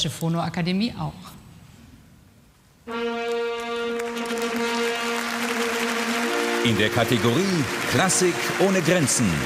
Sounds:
music
speech

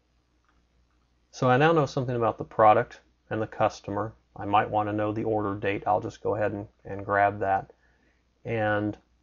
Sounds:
speech

